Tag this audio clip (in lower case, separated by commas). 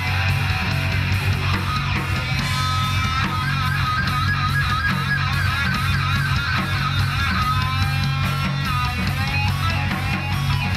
music, heavy metal